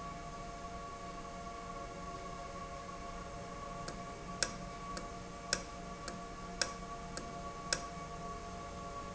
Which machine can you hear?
valve